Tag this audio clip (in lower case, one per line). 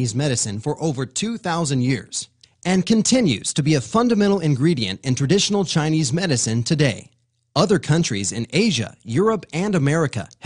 speech